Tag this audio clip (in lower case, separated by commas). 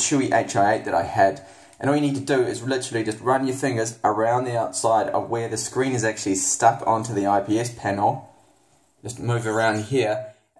speech